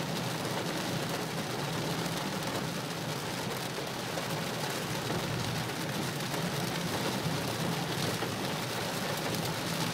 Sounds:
Rain on surface

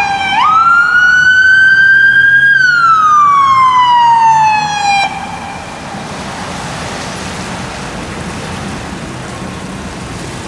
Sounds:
Vehicle, vroom, Car, Emergency vehicle

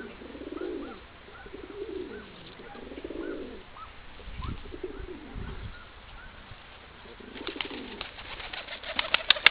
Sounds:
Bird, dove cooing, outside, rural or natural, Pigeon

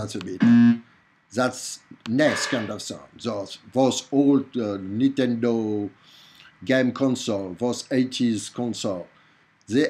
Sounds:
Speech

